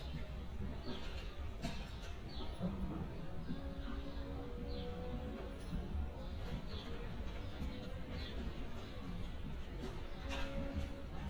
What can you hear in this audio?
non-machinery impact